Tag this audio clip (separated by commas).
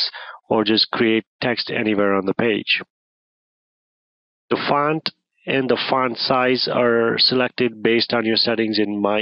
Speech